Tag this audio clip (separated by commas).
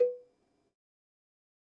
Bell, Cowbell